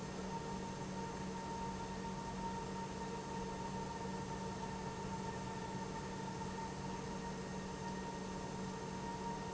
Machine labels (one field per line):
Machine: pump